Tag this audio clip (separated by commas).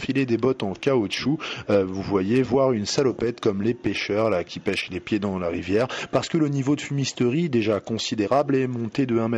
Speech